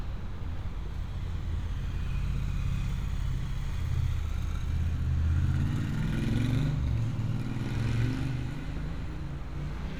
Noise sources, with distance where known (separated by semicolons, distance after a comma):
medium-sounding engine